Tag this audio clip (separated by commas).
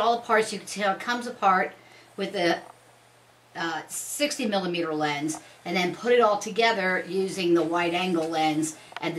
Speech